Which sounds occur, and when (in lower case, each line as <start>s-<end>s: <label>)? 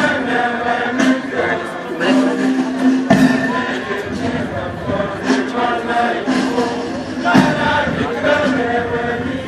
0.0s-2.9s: choir
0.0s-9.4s: music
3.1s-6.9s: choir
7.2s-9.4s: choir